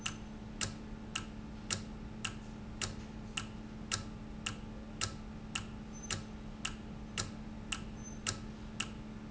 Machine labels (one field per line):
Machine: valve